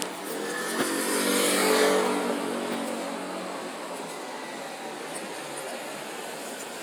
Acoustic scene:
residential area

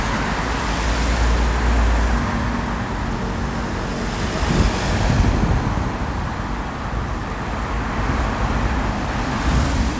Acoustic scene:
street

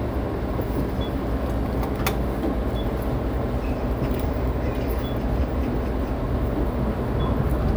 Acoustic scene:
street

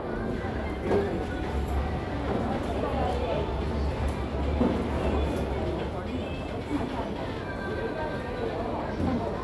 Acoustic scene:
crowded indoor space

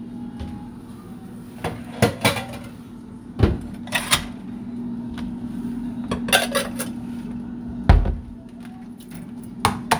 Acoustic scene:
kitchen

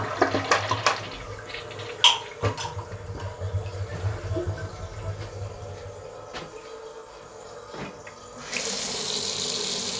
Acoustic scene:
restroom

